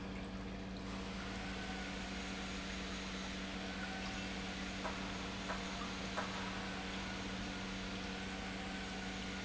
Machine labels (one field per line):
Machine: pump